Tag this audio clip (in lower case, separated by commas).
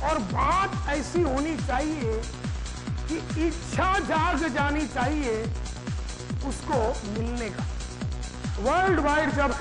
music, speech